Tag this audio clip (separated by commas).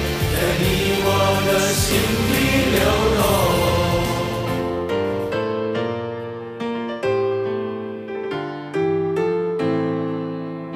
Music, Singing